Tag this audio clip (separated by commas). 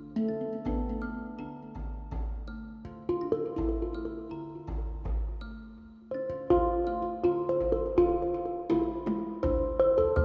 Music, Vibraphone